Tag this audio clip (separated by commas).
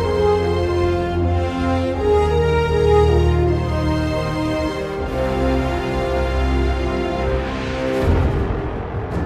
Tender music, Music